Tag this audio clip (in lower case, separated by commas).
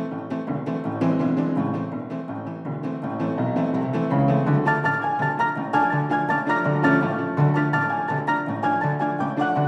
music